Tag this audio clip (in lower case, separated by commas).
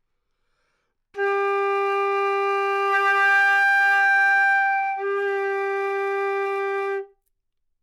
wind instrument, music, musical instrument